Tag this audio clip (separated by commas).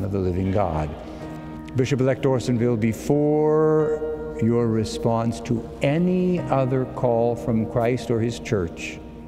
Music, Speech